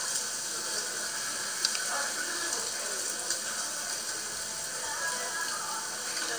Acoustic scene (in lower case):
restaurant